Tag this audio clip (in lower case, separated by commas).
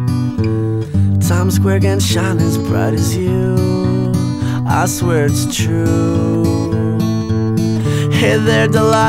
music, inside a small room